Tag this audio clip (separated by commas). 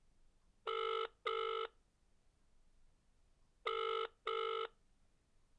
Alarm, Telephone